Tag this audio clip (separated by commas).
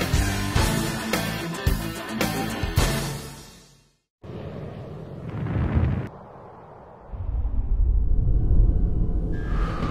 Music